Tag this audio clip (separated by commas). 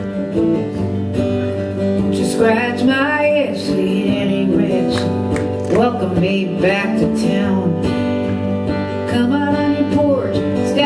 Music